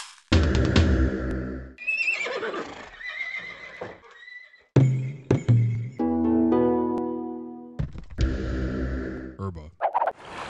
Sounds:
music, speech

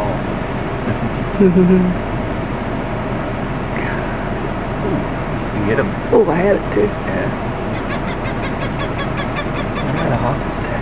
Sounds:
outside, rural or natural, bird, speech

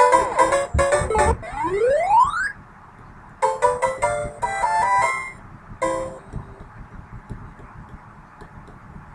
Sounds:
music

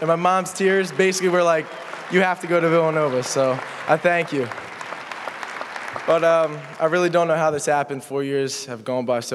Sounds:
male speech, speech

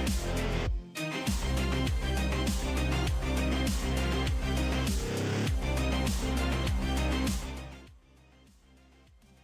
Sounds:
television, music

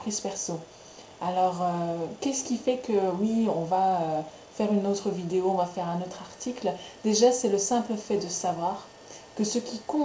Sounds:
speech

